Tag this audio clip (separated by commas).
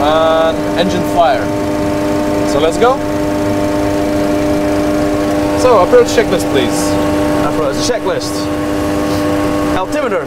Vehicle, Speech, Engine, Heavy engine (low frequency)